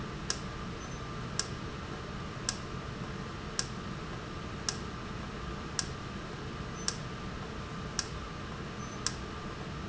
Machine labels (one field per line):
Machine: valve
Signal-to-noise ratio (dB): -6 dB